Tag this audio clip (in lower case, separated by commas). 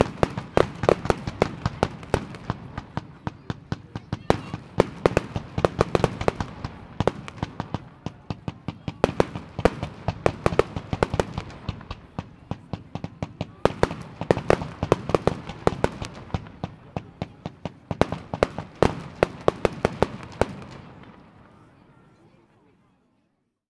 fireworks, explosion